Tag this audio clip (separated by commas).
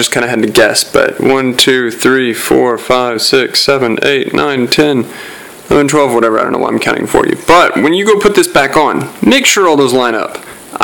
Speech